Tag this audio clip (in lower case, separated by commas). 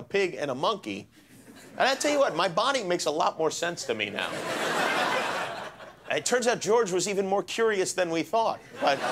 speech